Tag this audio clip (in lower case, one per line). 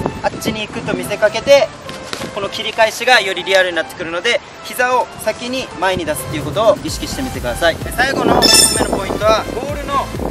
shot football